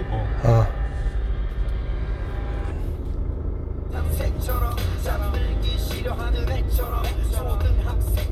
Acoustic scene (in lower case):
car